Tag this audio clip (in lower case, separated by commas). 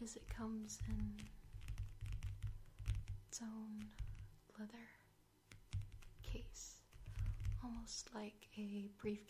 speech